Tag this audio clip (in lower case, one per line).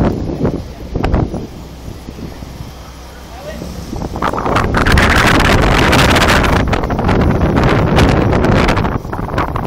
speech